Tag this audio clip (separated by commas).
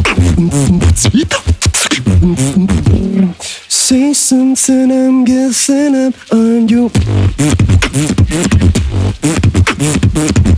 beat boxing